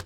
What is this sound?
wooden drawer closing